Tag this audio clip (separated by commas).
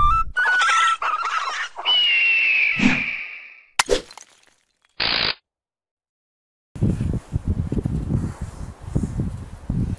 Music, outside, rural or natural